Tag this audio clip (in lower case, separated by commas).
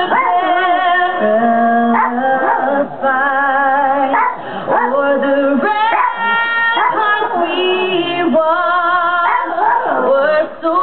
music, female singing